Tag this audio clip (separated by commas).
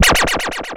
Scratching (performance technique), Musical instrument, Music